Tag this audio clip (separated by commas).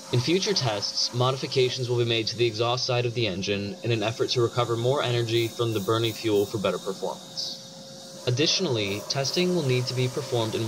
Speech